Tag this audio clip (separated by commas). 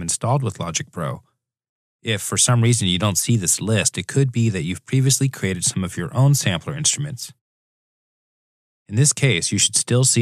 Speech